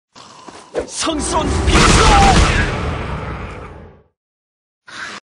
A whoosh and a pop, and a man speaking